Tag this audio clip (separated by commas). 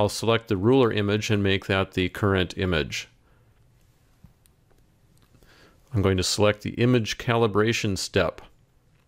Speech